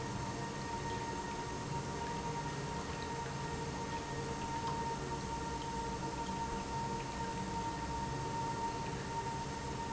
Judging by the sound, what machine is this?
pump